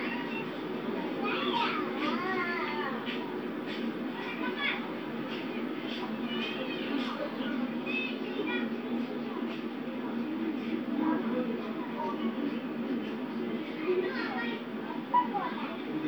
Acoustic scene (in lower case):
park